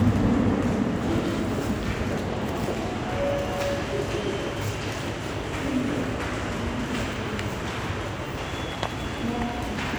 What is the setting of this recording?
subway station